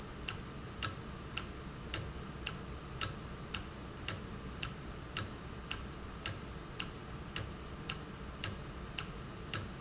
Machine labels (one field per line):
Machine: valve